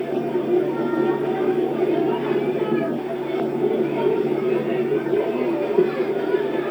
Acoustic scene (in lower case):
park